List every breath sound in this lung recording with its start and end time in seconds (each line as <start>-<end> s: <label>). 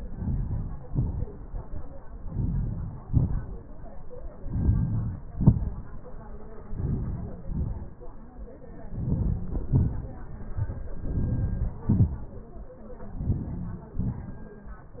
0.00-0.70 s: inhalation
0.87-1.34 s: exhalation
2.28-2.94 s: inhalation
3.12-3.66 s: exhalation
4.46-5.17 s: inhalation
5.36-6.03 s: exhalation
6.87-7.54 s: inhalation
7.62-8.05 s: exhalation
9.04-9.62 s: inhalation
9.73-10.16 s: exhalation
11.15-11.75 s: inhalation
11.95-12.33 s: exhalation
13.32-13.92 s: inhalation
14.09-14.62 s: exhalation